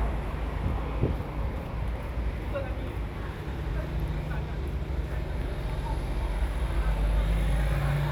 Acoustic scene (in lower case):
residential area